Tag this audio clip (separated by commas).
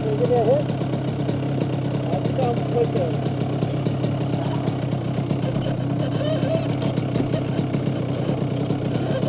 Speech